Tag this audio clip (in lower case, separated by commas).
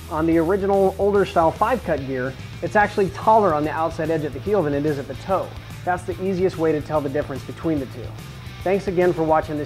speech, music